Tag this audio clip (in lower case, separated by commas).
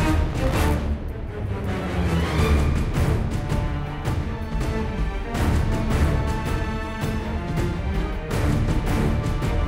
background music, music